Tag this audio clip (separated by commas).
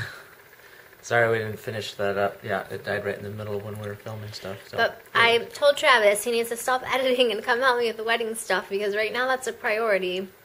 inside a small room, Speech